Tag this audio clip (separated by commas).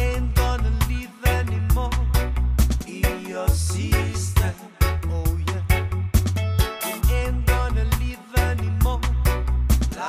Music